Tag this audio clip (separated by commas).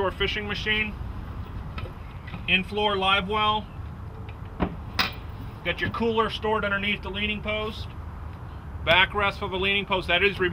Speech, Water vehicle